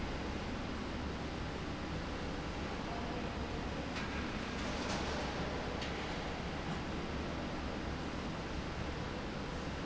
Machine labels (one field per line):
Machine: slide rail